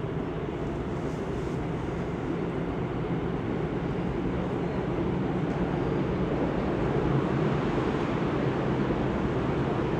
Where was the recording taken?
on a subway train